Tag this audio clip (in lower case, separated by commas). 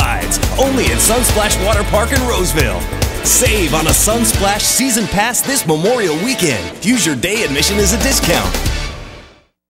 music, speech